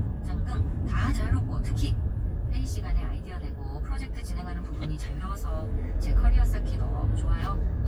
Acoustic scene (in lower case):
car